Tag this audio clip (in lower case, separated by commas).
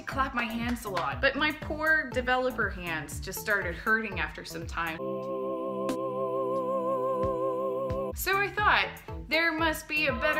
speech, music